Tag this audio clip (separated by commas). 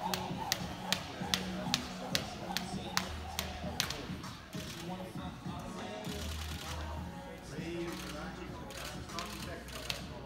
rope skipping